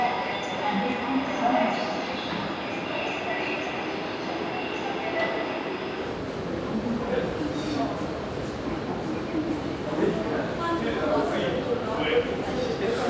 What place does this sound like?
subway station